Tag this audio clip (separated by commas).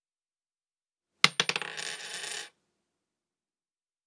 Coin (dropping), home sounds